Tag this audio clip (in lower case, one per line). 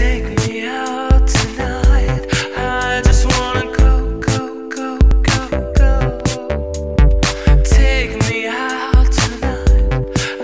music